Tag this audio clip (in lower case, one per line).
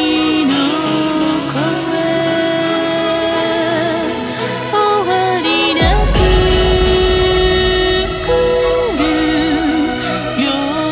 rain on surface
music